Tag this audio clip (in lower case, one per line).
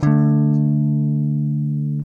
plucked string instrument
musical instrument
music
strum
guitar
electric guitar